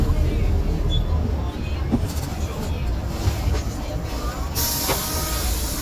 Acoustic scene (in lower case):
bus